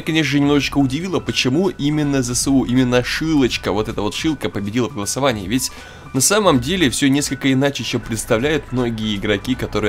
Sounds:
music
speech

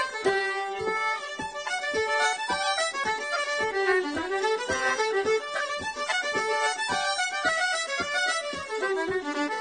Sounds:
music

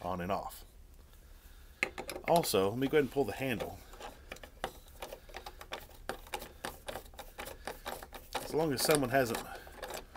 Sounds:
speech

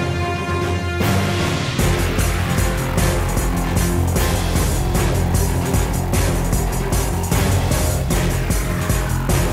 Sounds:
music

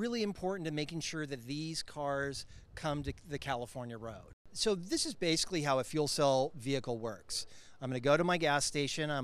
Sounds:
speech

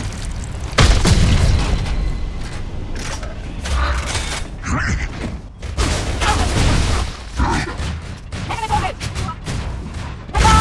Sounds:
speech

